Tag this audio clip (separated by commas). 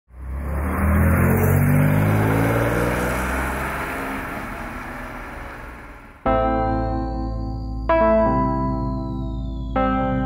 Car, Music, Vehicle, Accelerating, outside, urban or man-made, Medium engine (mid frequency)